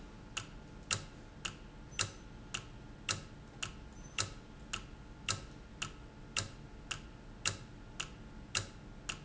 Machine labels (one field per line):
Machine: valve